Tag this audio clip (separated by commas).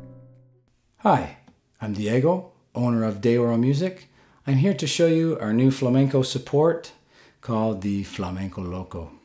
Speech